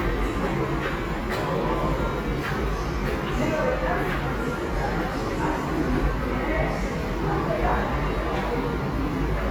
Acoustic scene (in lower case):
subway station